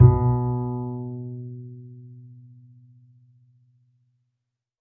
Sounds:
music
bowed string instrument
musical instrument

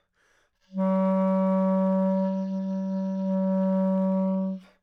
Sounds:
woodwind instrument
music
musical instrument

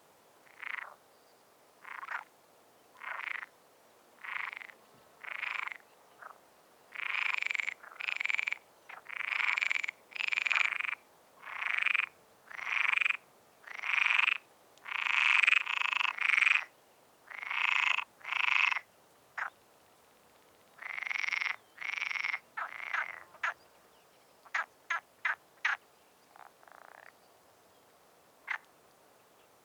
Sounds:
frog
animal
wild animals

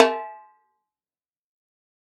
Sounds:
music
snare drum
musical instrument
drum
percussion

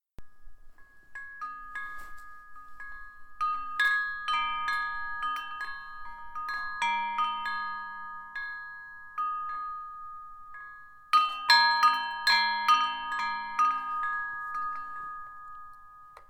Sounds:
bell

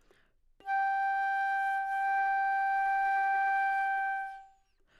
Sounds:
musical instrument
woodwind instrument
music

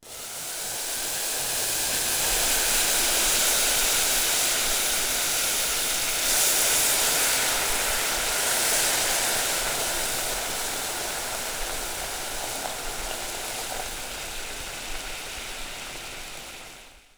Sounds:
liquid
boiling

